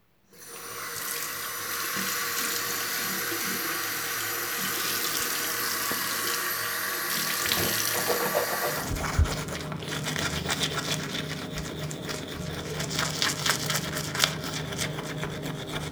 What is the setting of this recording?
restroom